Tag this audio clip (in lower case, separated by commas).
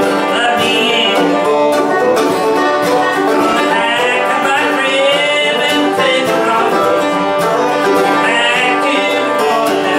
bluegrass, music, country